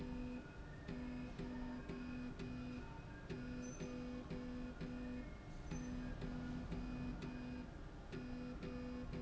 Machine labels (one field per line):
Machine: slide rail